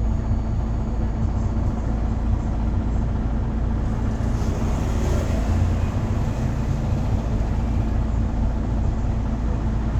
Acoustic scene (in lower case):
bus